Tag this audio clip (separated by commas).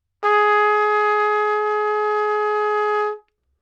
Brass instrument, Music, Trumpet, Musical instrument